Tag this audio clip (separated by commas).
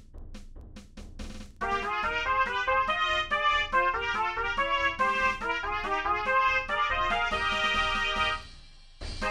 Brass instrument, Trumpet, Music